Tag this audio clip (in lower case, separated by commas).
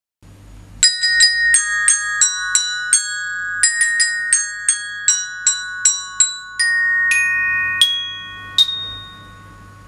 playing glockenspiel